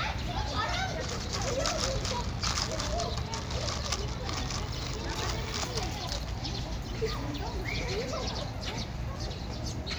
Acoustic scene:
park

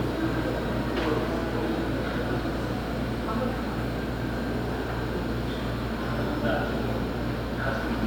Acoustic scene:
subway station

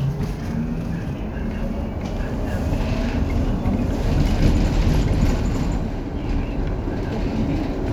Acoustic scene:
bus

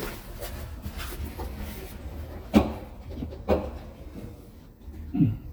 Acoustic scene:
elevator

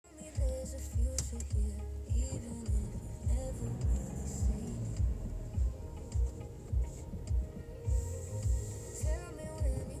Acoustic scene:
car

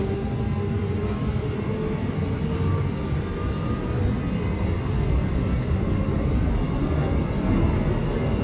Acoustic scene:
subway train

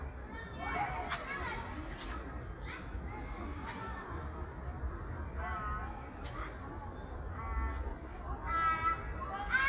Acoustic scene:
park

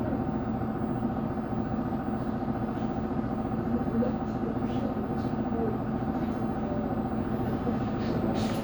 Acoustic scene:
bus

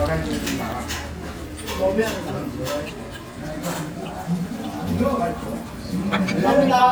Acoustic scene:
restaurant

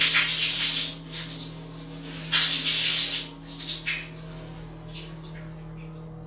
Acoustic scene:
restroom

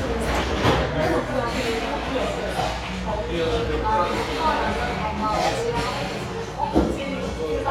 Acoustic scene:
cafe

